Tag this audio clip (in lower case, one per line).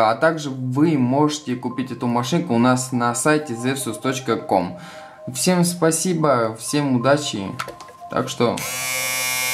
electric shaver